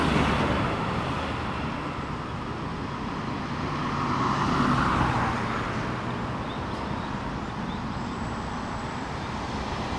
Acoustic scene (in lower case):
street